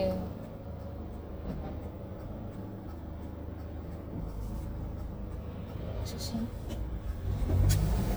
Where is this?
in a car